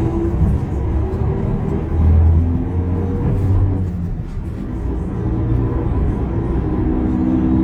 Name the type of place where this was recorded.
bus